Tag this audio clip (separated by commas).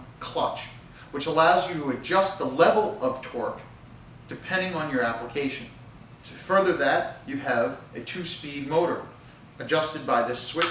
Speech